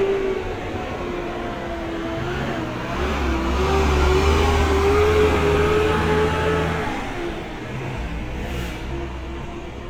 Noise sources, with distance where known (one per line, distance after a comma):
large-sounding engine